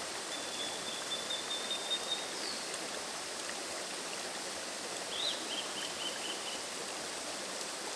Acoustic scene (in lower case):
park